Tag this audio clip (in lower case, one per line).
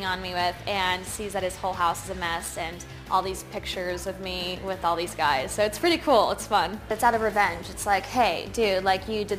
music
speech